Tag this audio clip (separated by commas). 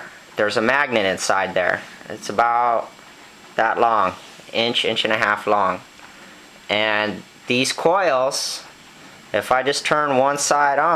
Speech